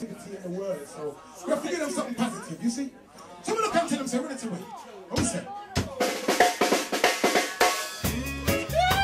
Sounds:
inside a large room or hall, drum roll, speech, music

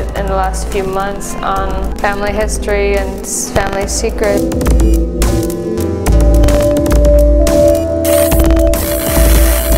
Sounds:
music

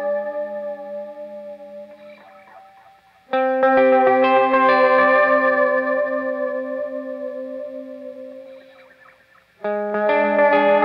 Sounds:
music, effects unit, musical instrument, distortion, guitar, plucked string instrument, electric guitar

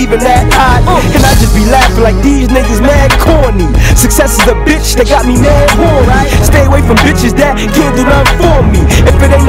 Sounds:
music

